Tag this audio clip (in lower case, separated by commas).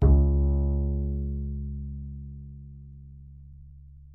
bowed string instrument, musical instrument, music